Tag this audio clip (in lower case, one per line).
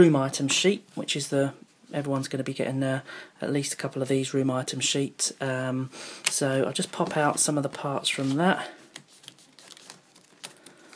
speech